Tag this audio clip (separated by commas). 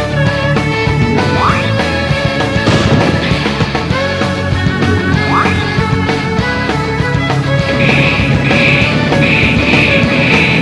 Music